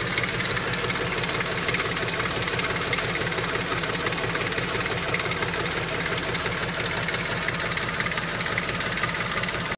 Idling car engine